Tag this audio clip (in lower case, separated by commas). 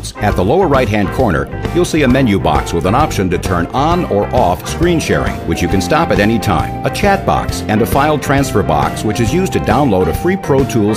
speech, music